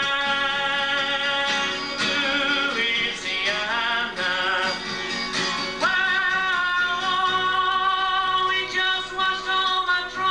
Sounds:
plucked string instrument, inside a large room or hall, singing, music, musical instrument

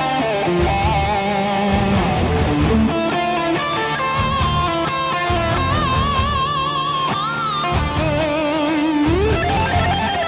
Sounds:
plucked string instrument, musical instrument, guitar, strum, acoustic guitar, music

